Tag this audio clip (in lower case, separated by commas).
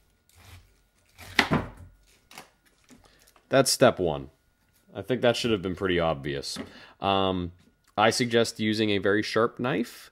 speech, inside a small room